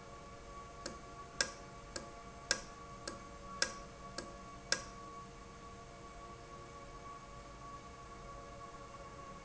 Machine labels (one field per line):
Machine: valve